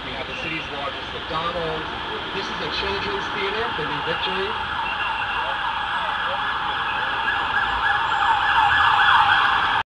An adult male is speaking, and emergency vehicle alarms are sounding